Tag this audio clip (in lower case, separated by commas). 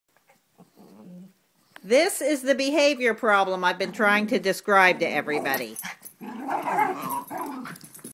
speech, yip